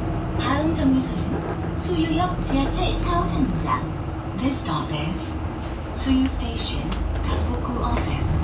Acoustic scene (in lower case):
bus